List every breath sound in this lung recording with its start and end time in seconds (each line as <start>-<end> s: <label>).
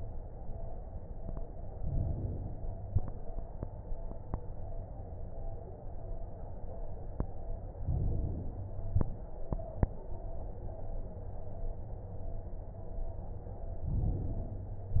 1.73-2.85 s: inhalation
7.83-8.95 s: inhalation
13.87-14.99 s: inhalation